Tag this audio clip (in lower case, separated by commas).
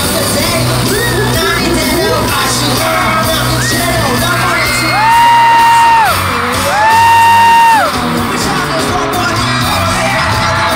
music